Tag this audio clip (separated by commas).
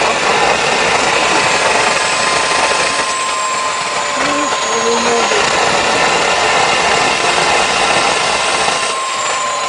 Speech